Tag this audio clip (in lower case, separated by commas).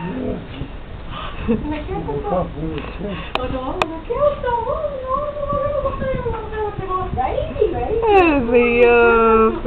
speech